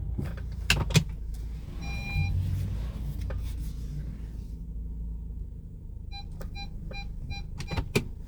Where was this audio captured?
in a car